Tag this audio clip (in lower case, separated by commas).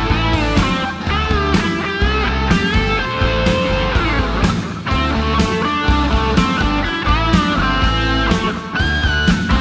plucked string instrument, acoustic guitar, guitar, musical instrument, music, electric guitar, bass guitar